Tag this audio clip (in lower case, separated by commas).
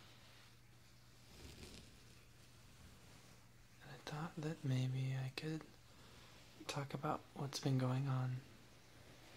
speech, man speaking